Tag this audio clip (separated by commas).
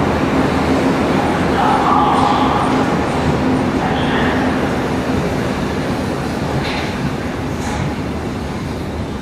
underground